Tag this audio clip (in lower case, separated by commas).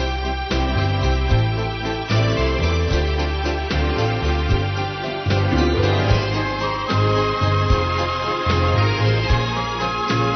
music